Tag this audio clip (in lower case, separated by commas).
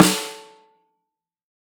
snare drum, musical instrument, music, percussion, drum